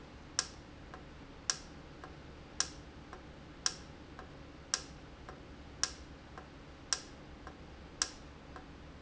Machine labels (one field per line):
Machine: valve